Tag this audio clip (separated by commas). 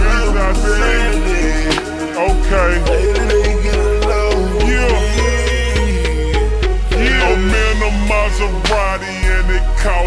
Music